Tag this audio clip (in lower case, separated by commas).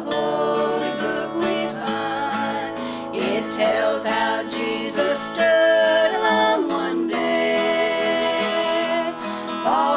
music, gospel music